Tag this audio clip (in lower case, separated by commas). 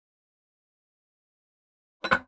dishes, pots and pans, silverware, domestic sounds